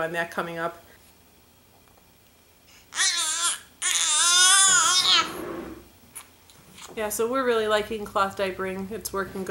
An adult female speaks, a baby cries, and a scraping sound occurs